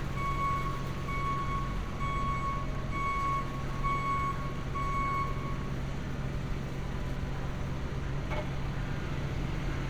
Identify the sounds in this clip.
reverse beeper